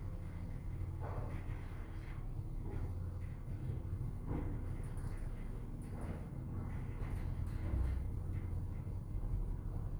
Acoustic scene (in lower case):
elevator